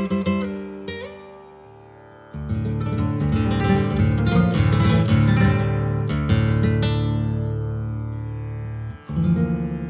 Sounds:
Musical instrument, Acoustic guitar, Plucked string instrument, Music, Strum, Guitar

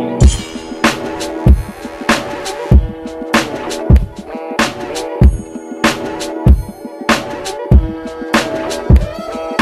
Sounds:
Electronica, Music

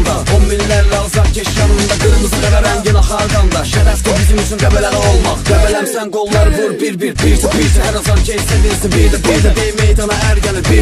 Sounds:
Music

